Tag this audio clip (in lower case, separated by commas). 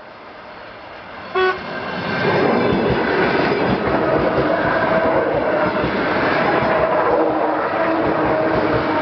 train, vehicle, railroad car